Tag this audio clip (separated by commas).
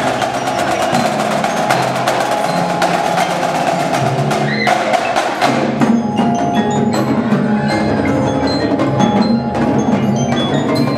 xylophone, Mallet percussion, Glockenspiel